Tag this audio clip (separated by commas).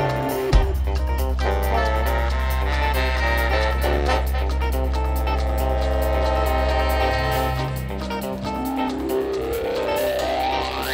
Music